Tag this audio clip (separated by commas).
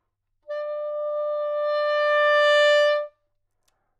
woodwind instrument, Musical instrument, Music